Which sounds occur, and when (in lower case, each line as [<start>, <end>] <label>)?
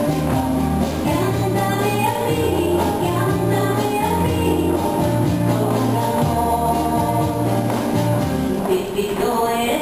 [0.00, 9.81] music
[0.98, 2.80] female singing
[2.98, 4.68] female singing
[5.45, 7.35] female singing
[8.61, 9.81] female singing